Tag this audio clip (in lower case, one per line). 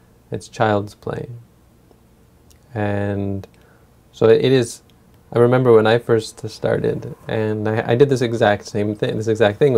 speech